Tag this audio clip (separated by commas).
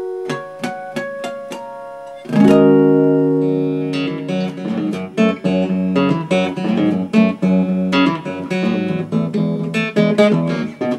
Guitar, Musical instrument, Music, Plucked string instrument, Acoustic guitar